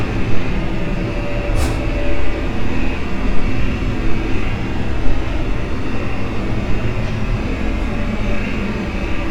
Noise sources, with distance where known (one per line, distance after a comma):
large-sounding engine, near